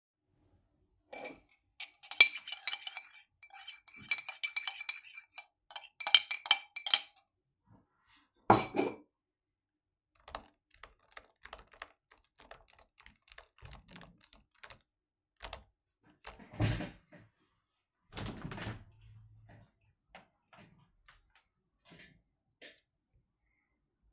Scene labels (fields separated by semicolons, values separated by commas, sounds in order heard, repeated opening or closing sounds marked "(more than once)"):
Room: office; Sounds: cutlery and dishes, keyboard typing, window